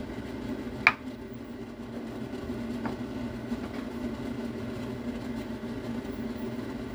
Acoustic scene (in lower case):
kitchen